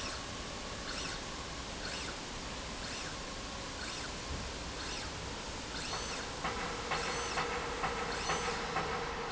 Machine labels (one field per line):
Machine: slide rail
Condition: normal